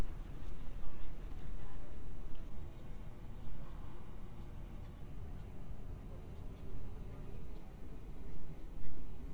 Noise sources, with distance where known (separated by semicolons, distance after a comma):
unidentified human voice, far